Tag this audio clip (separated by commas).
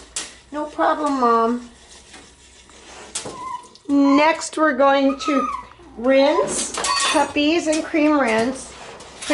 Bathtub (filling or washing), Speech, Animal, Dog